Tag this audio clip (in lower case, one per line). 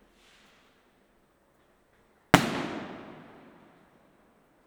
explosion
fireworks